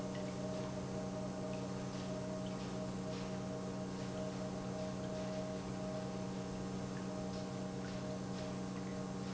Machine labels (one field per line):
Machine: pump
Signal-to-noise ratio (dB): 0 dB